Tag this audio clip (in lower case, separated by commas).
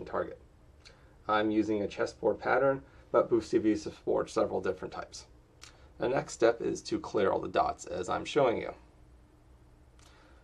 speech